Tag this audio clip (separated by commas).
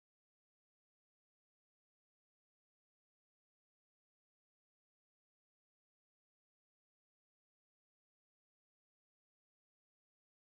firing cannon